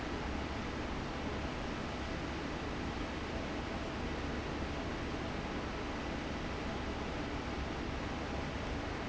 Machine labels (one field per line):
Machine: fan